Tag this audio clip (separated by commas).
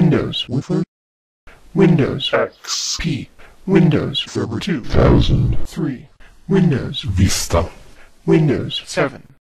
monologue, Speech, Speech synthesizer, Male speech